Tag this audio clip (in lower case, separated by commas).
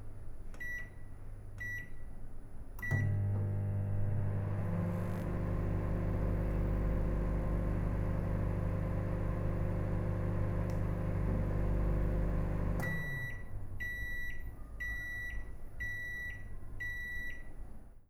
home sounds, microwave oven